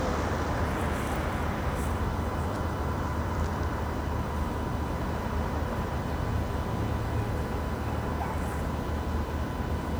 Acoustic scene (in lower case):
street